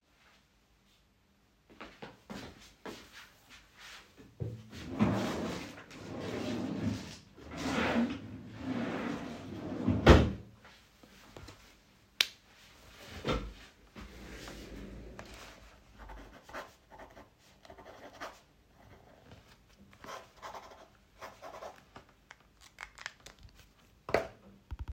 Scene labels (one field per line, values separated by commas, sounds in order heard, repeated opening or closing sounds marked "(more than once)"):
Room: bedroom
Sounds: footsteps, wardrobe or drawer (more than once)